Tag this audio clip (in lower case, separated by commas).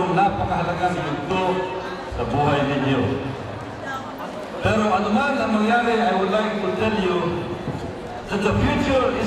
narration, man speaking, speech